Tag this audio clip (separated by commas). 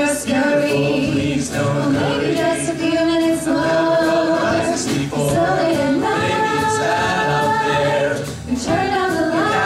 Music